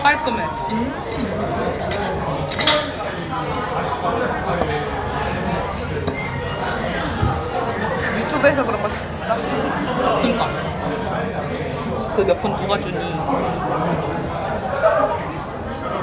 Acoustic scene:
restaurant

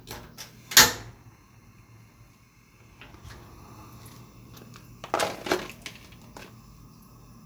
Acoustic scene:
kitchen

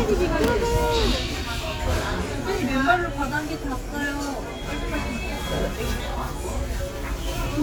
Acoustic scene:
restaurant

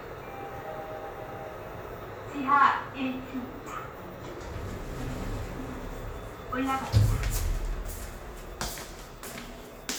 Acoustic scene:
elevator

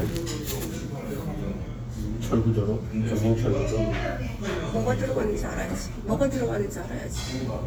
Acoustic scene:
restaurant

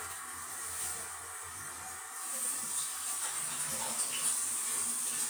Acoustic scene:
restroom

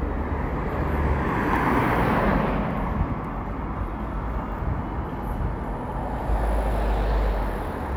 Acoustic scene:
street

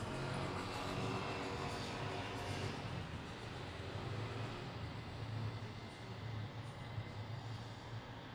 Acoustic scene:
residential area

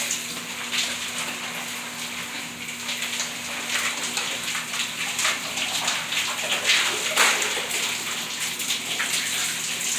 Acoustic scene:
restroom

